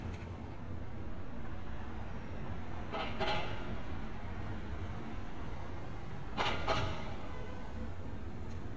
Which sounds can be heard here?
non-machinery impact